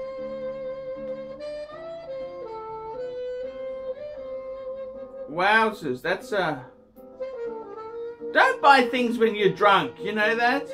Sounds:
music
saxophone
speech

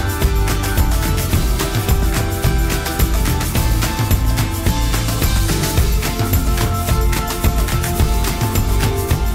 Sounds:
music

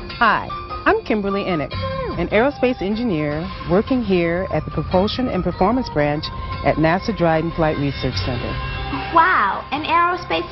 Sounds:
speech
music

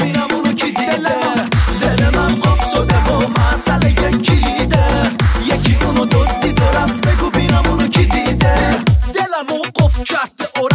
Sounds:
music
exciting music
dance music

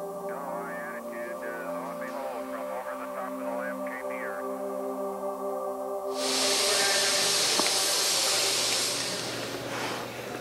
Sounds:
music
inside a small room

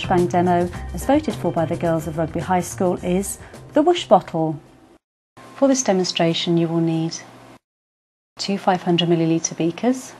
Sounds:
speech
music

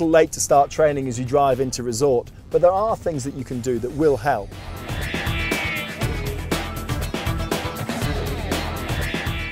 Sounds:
music
speech

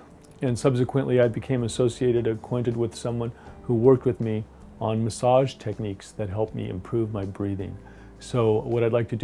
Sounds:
speech

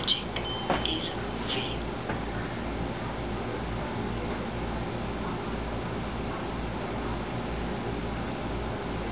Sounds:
inside a small room
speech

